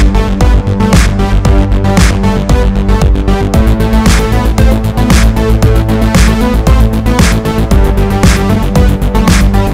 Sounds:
Music

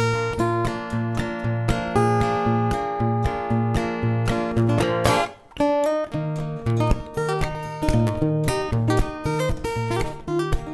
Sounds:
Music, Plucked string instrument, Acoustic guitar, Strum, Musical instrument, Guitar

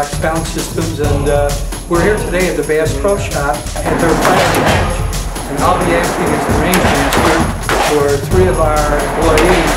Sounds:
Music, Speech

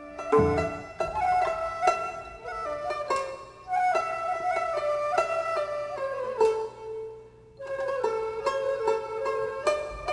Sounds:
Traditional music, Music

